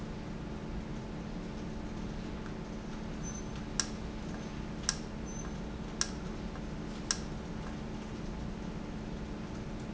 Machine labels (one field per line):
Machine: valve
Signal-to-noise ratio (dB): -6 dB